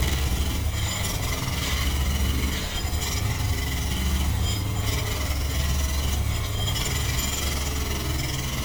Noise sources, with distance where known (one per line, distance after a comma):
unidentified impact machinery